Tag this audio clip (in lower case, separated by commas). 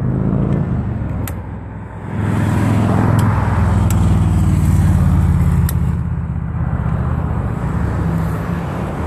vehicle, motorcycle, outside, urban or man-made, motor vehicle (road)